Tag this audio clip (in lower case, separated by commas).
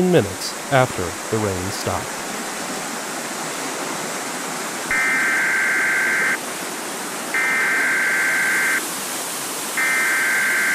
speech, stream